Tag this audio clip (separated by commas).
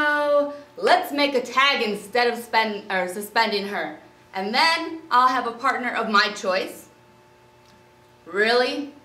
Speech